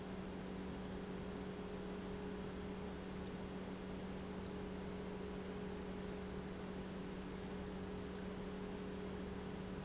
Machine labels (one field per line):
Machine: pump